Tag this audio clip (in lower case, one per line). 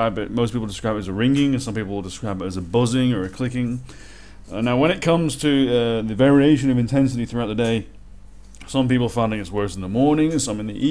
speech